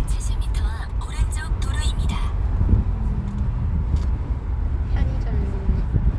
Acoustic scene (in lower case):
car